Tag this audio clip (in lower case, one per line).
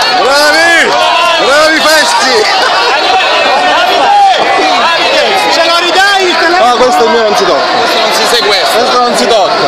speech